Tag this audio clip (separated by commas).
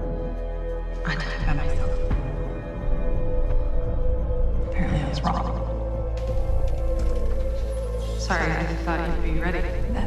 Music, Speech